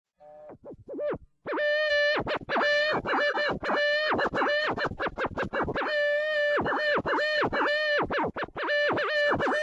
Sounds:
Music

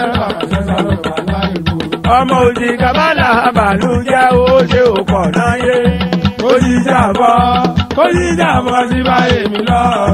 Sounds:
Music

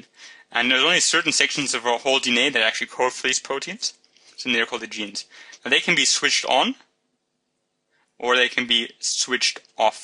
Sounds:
Speech

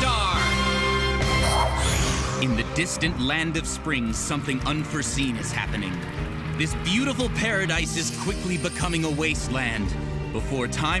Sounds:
Music, Speech

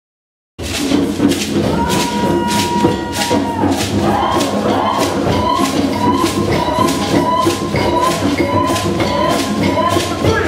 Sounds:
Tambourine, Music

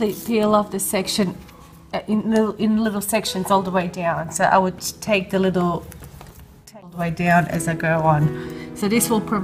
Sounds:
Speech, Music

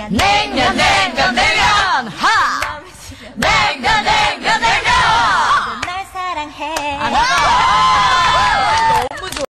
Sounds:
Speech, Female singing

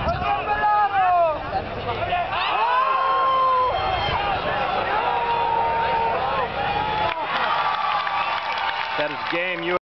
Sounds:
Speech

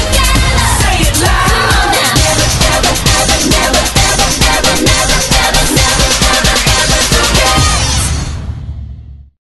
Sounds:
Blues, Music, Dance music

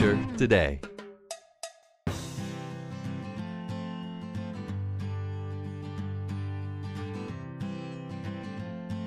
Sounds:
Speech, Music

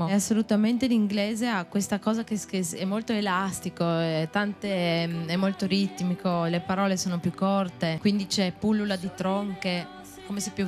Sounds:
Music, Speech

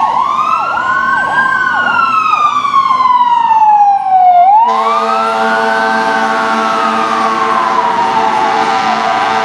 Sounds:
Vehicle

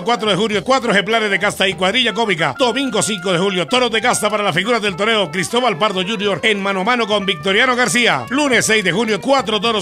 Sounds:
Speech, Music

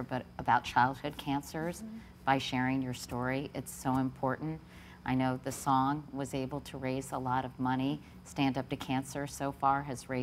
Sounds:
Speech

